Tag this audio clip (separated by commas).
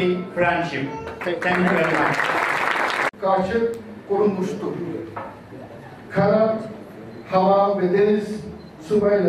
Speech